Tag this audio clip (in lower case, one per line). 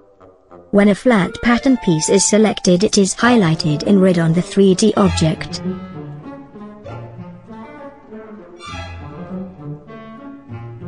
brass instrument